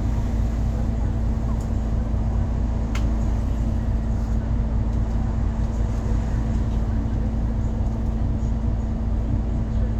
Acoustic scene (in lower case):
bus